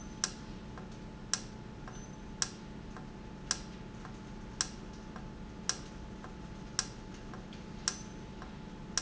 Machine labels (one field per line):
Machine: valve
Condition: normal